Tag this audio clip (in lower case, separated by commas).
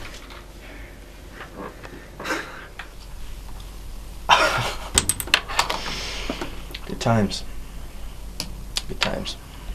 speech, inside a small room